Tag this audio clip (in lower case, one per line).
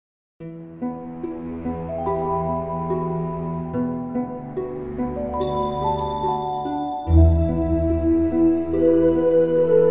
background music
music